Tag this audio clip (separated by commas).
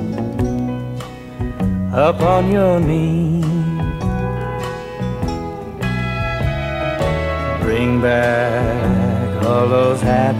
Music, Steel guitar